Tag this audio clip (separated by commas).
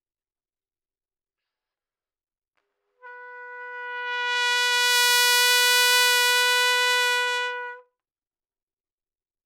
Trumpet, Brass instrument, Music, Musical instrument